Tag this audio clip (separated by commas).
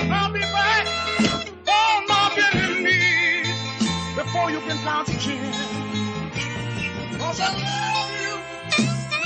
Music